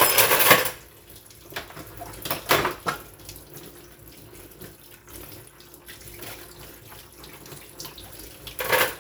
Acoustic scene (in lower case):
kitchen